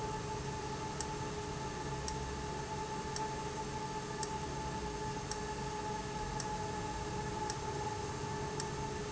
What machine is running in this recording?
valve